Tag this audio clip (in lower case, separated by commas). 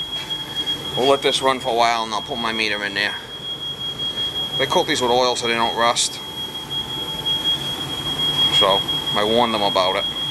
inside a large room or hall, speech